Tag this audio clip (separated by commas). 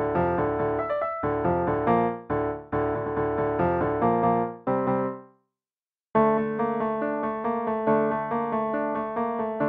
Theme music, Soundtrack music, Music